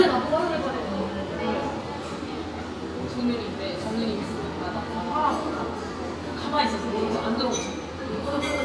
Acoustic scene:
crowded indoor space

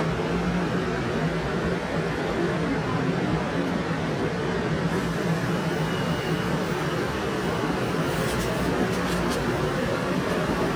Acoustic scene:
subway station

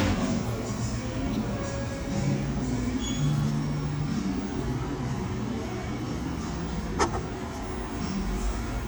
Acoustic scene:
cafe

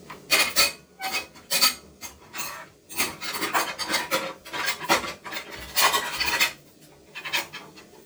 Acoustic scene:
kitchen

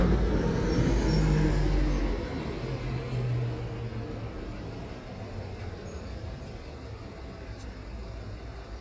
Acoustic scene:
street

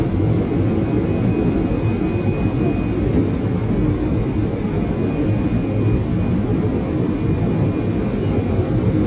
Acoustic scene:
subway train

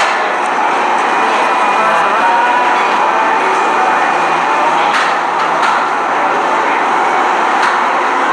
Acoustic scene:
cafe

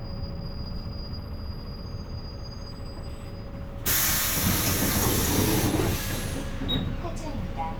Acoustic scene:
bus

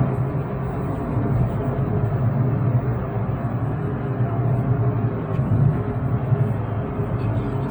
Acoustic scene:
car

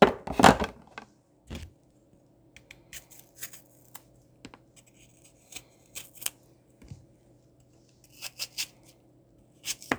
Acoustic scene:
kitchen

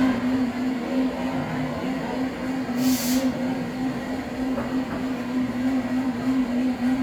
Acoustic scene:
cafe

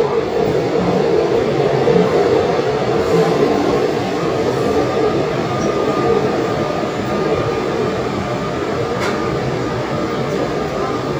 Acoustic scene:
subway train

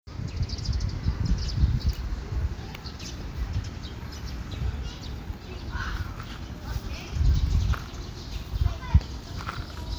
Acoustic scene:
park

